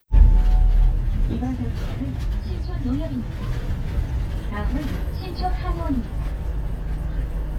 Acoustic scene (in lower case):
bus